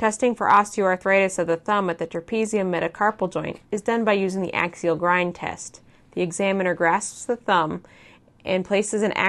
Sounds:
speech

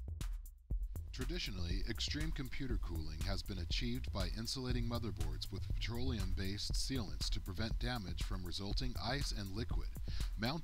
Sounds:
music, speech

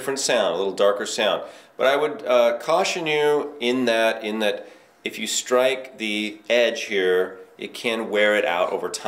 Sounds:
speech

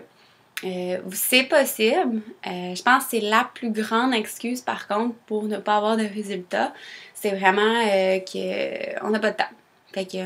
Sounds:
speech

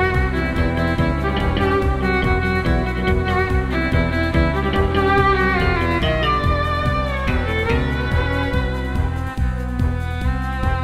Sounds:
musical instrument, music, violin

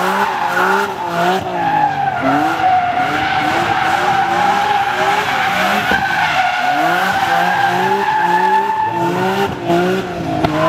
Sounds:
car, vehicle, car passing by

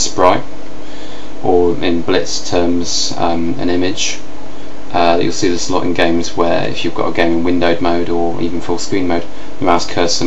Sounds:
speech

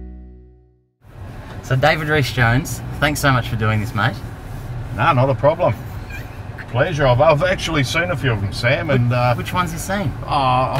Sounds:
vehicle, car

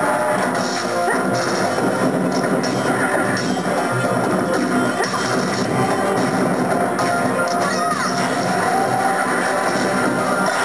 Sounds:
music, crash

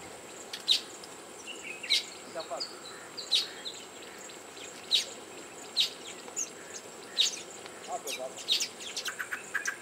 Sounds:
fly, bee or wasp, insect

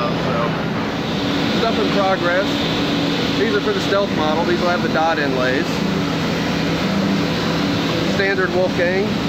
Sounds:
speech, inside a large room or hall

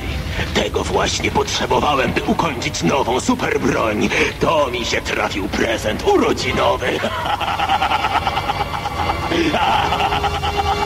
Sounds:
speech, music

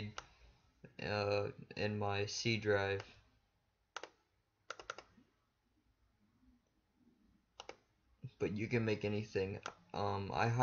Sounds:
speech

